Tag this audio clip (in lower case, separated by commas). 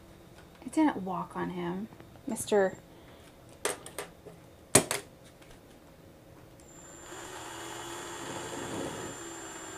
speech, inside a small room